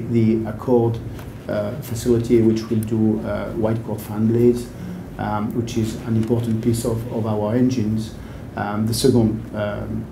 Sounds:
speech

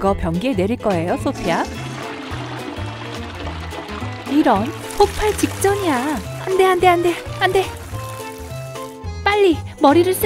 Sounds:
ice cream van

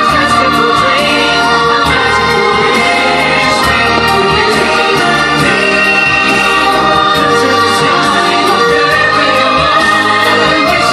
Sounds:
music

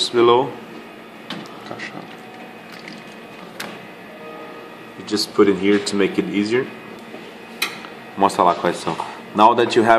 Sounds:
printer, speech

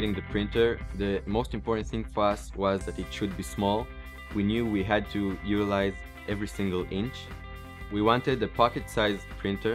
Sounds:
music, speech

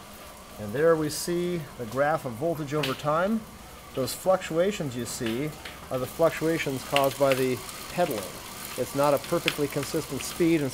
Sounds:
bicycle, speech

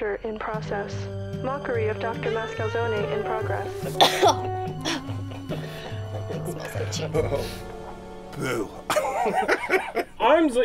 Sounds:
speech, music

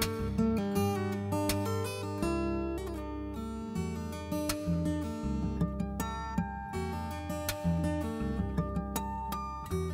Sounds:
music

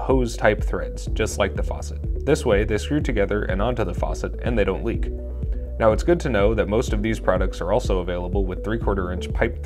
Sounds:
speech, music

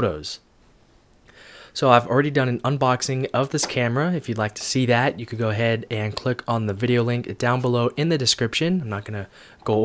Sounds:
speech

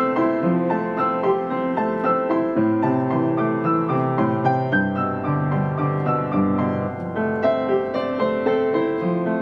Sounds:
music

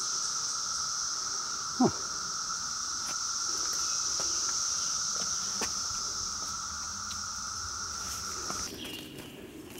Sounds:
walk, outside, rural or natural

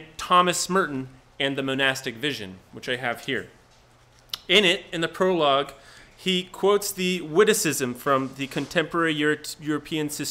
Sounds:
speech

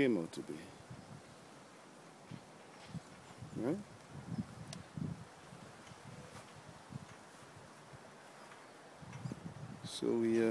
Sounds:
speech, wind

